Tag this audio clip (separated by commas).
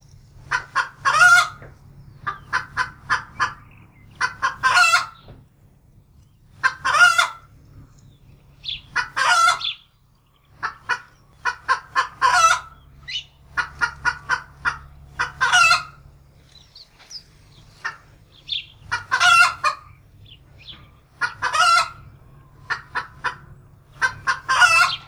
Animal, rooster, Fowl, livestock